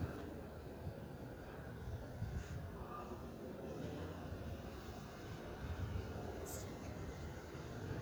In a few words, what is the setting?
residential area